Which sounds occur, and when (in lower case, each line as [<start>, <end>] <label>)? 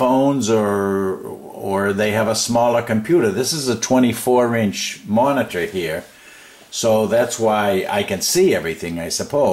[0.00, 5.98] male speech
[0.00, 9.52] mechanisms
[6.09, 6.66] breathing
[6.70, 9.52] male speech